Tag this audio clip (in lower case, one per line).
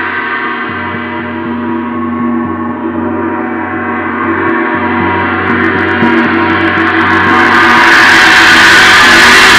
playing gong